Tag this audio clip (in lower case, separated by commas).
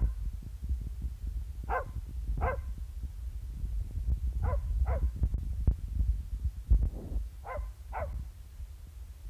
dog, bark, pets, canids, animal